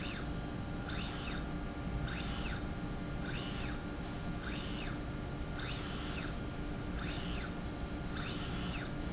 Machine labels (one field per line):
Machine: slide rail